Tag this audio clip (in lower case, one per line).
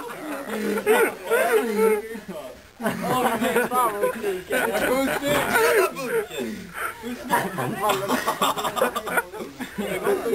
speech